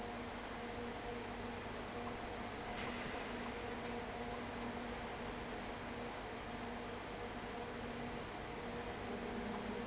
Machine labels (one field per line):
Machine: fan